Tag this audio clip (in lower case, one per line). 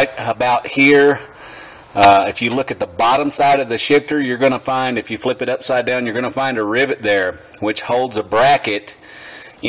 speech